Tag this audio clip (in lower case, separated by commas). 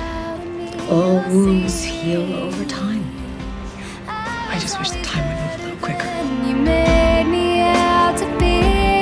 music, speech